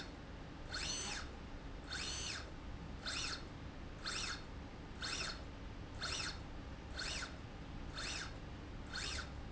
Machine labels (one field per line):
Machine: slide rail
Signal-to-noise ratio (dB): 6 dB